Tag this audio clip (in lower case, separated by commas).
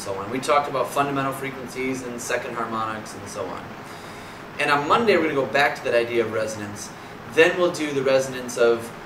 speech